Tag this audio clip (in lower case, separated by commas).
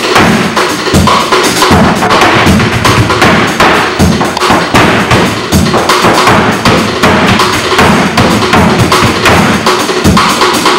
flamenco, music